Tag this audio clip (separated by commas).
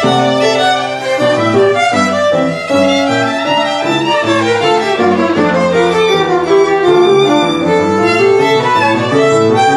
Music, fiddle, Musical instrument